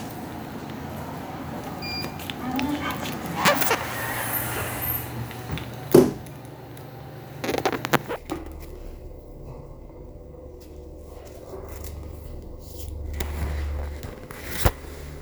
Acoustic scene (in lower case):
elevator